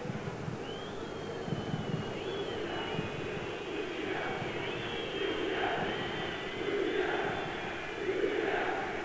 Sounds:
speech

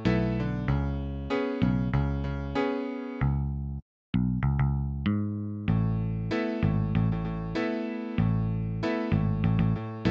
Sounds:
music

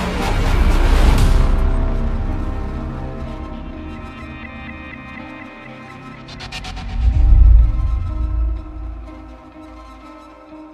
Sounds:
music

